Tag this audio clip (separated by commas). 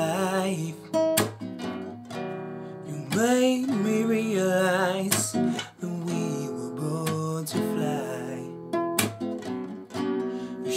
Male singing, Music